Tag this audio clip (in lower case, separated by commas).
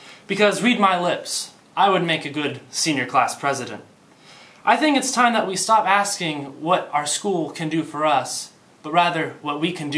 monologue, male speech, speech